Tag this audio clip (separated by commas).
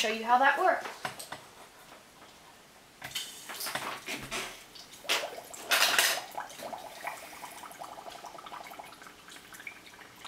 inside a small room, Speech